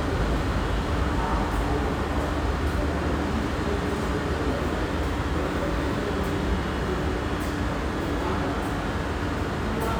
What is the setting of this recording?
subway station